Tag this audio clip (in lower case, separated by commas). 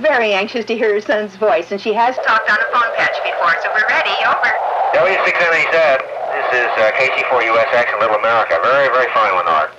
speech, radio